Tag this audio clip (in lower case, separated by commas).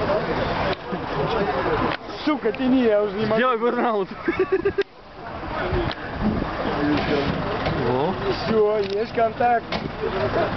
speech